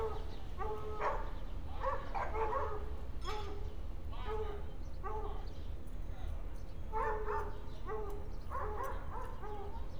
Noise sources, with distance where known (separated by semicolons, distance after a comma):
unidentified human voice; dog barking or whining, near